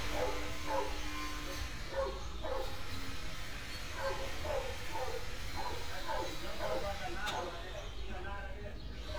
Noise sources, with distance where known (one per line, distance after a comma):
small or medium rotating saw
person or small group talking, near
dog barking or whining